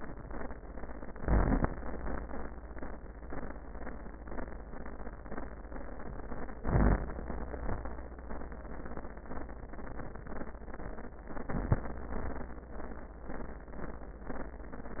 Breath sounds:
1.10-1.71 s: inhalation
1.10-1.71 s: crackles
6.62-7.23 s: inhalation
6.62-7.23 s: crackles
7.53-8.03 s: exhalation
7.53-8.03 s: crackles
11.30-11.86 s: inhalation
11.30-11.86 s: crackles
12.02-12.57 s: exhalation
12.02-12.57 s: crackles

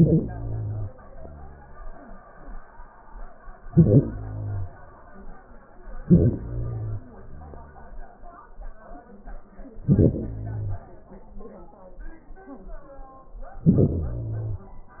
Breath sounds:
0.00-0.91 s: inhalation
0.91-2.24 s: exhalation
3.61-4.75 s: inhalation
5.83-7.07 s: inhalation
7.07-8.44 s: exhalation
9.74-11.15 s: inhalation
13.52-14.94 s: inhalation

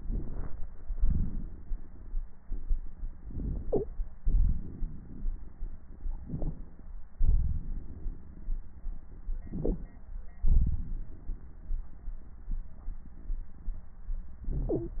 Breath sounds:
0.97-2.18 s: exhalation
3.25-3.89 s: inhalation
4.21-5.83 s: exhalation
6.21-6.85 s: inhalation
7.16-8.84 s: exhalation
9.41-10.06 s: inhalation
10.44-13.85 s: exhalation

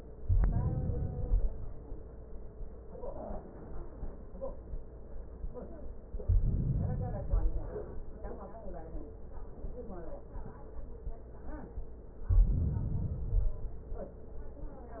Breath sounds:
0.24-1.58 s: inhalation
6.26-7.74 s: inhalation
12.21-13.75 s: inhalation

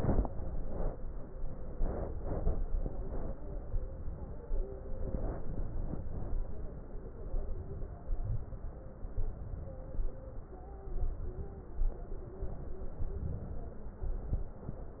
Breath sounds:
0.00-0.91 s: inhalation
1.75-2.54 s: inhalation
3.69-4.48 s: inhalation
5.02-6.04 s: inhalation
7.22-8.04 s: inhalation
9.06-10.09 s: inhalation
10.83-11.59 s: inhalation
13.05-14.04 s: inhalation

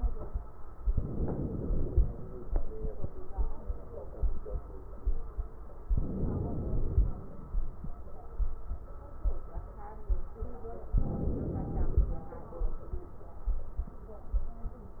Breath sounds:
0.90-2.05 s: inhalation
5.93-7.08 s: inhalation
10.98-12.13 s: inhalation

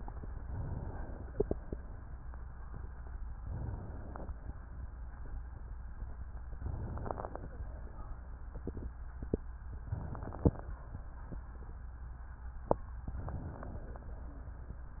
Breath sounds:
0.35-1.39 s: inhalation
3.31-4.35 s: inhalation
6.51-7.55 s: inhalation
9.81-10.85 s: inhalation
13.10-14.10 s: inhalation

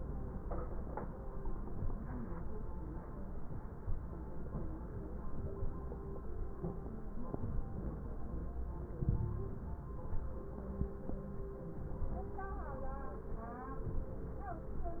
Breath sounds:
8.97-9.65 s: inhalation
8.97-9.65 s: crackles

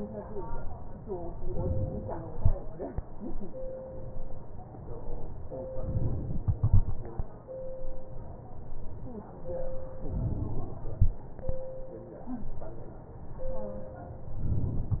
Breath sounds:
5.71-6.41 s: inhalation
10.12-10.82 s: inhalation

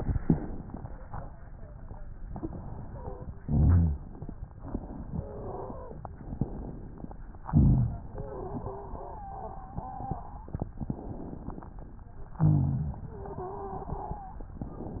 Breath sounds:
2.28-3.25 s: inhalation
2.85-3.25 s: wheeze
3.40-4.02 s: exhalation
3.42-4.06 s: rhonchi
5.07-6.04 s: wheeze
6.21-7.17 s: inhalation
7.48-8.10 s: exhalation
7.48-8.12 s: rhonchi
8.12-10.61 s: wheeze
10.83-11.77 s: inhalation
12.39-13.02 s: exhalation
12.39-13.04 s: rhonchi
13.09-14.48 s: wheeze

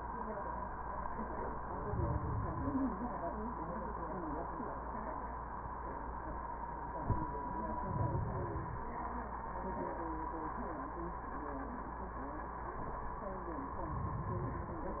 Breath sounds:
1.63-2.94 s: inhalation
7.79-8.90 s: inhalation
13.76-15.00 s: inhalation

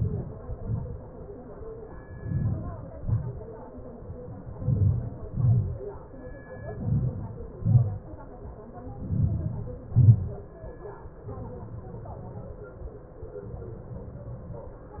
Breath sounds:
0.00-0.53 s: inhalation
0.53-1.06 s: exhalation
1.92-2.87 s: inhalation
2.90-3.46 s: exhalation
4.21-5.33 s: inhalation
5.39-6.13 s: exhalation
6.43-7.44 s: inhalation
7.44-8.14 s: exhalation
8.69-9.75 s: inhalation
9.81-10.74 s: exhalation

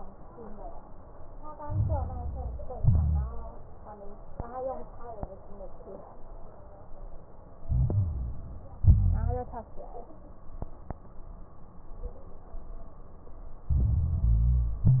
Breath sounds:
1.58-2.73 s: inhalation
1.58-2.73 s: crackles
2.73-3.53 s: exhalation
2.73-3.53 s: crackles
7.66-8.80 s: inhalation
7.66-8.80 s: crackles
8.84-9.67 s: exhalation
8.84-9.67 s: crackles
13.68-14.84 s: inhalation
13.68-14.84 s: crackles
14.86-15.00 s: exhalation
14.86-15.00 s: crackles

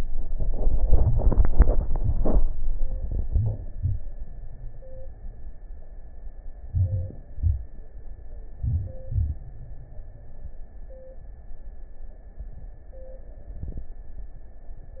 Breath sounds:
3.03-3.73 s: inhalation
3.74-4.28 s: exhalation
6.67-7.21 s: inhalation
7.33-7.87 s: exhalation
8.55-9.09 s: inhalation
9.10-9.63 s: exhalation

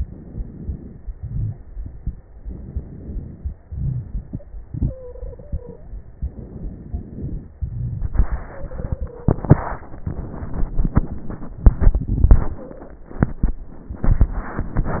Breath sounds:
0.00-1.11 s: inhalation
0.00-1.11 s: crackles
1.15-2.36 s: exhalation
2.35-3.64 s: crackles
2.35-3.65 s: inhalation
3.65-6.19 s: exhalation
4.76-5.87 s: stridor
6.21-7.57 s: inhalation
6.21-7.57 s: crackles
7.57-9.33 s: exhalation
8.46-9.38 s: stridor
12.56-13.03 s: stridor

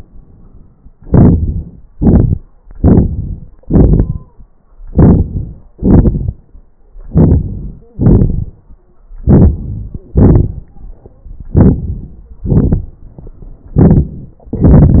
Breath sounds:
0.89-1.81 s: crackles
0.93-1.84 s: inhalation
1.83-2.53 s: exhalation
2.56-3.51 s: inhalation
2.56-3.51 s: crackles
3.51-4.63 s: exhalation
3.51-4.63 s: crackles
4.63-5.67 s: inhalation
5.70-6.77 s: exhalation
6.77-7.88 s: inhalation
7.78-8.01 s: wheeze
7.88-8.98 s: exhalation
9.21-9.97 s: inhalation
9.91-10.14 s: wheeze
9.94-11.22 s: exhalation
11.21-12.23 s: crackles
11.23-12.28 s: inhalation
12.25-13.63 s: exhalation
12.25-13.63 s: crackles
13.64-14.36 s: inhalation
13.64-14.36 s: crackles

